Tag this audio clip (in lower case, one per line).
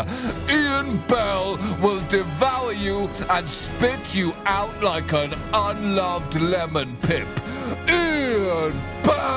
music
speech